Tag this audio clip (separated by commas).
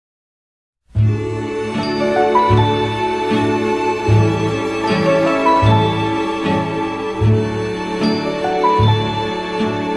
Music, Background music